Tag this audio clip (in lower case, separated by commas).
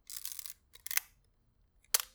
camera, mechanisms